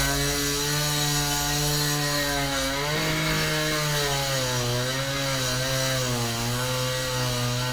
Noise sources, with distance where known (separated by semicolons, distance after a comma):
chainsaw, near